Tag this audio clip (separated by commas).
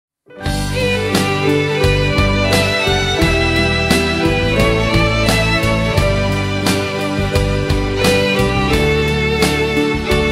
Music, inside a large room or hall